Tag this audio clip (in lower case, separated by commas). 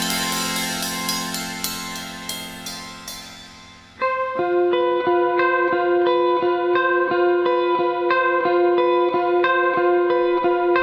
drum kit, musical instrument, effects unit, music, inside a large room or hall